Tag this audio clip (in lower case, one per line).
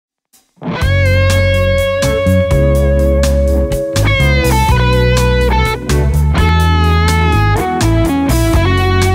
playing electric guitar
electric guitar
plucked string instrument
music
guitar
musical instrument